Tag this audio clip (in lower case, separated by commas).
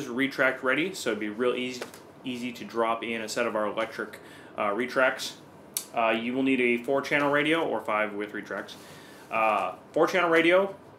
speech